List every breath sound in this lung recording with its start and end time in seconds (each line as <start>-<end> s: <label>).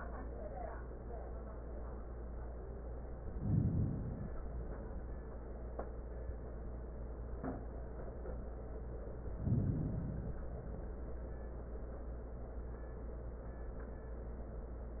3.21-4.48 s: inhalation
9.32-10.47 s: inhalation
10.47-11.62 s: exhalation